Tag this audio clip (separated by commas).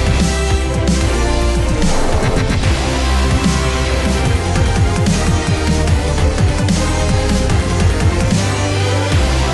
Music, Background music